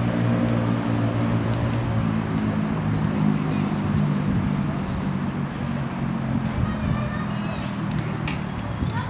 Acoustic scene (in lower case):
residential area